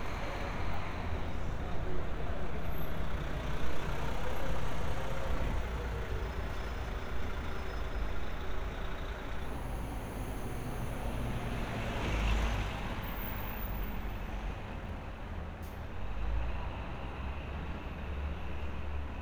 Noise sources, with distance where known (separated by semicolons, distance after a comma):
large-sounding engine